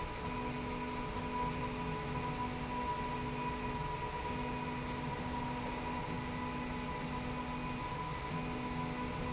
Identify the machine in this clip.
slide rail